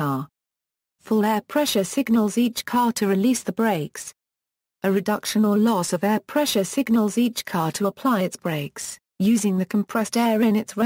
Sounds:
speech

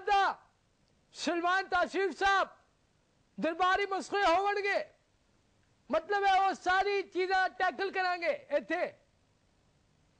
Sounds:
narration, male speech, speech

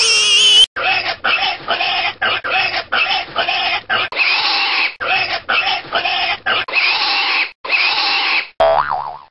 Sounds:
oink

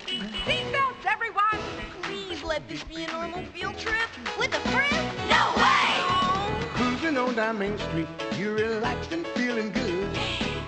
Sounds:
speech, music

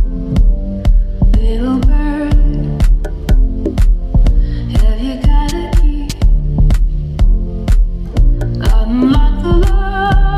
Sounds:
music

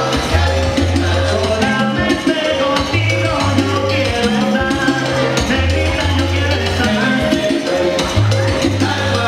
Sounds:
salsa music

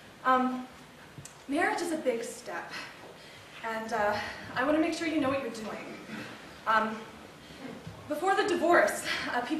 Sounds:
monologue, speech

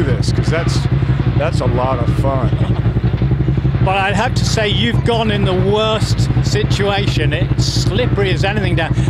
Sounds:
speech, vehicle

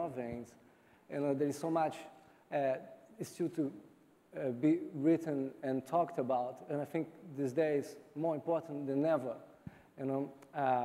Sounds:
speech

